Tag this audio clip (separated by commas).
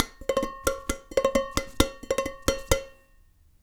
home sounds, dishes, pots and pans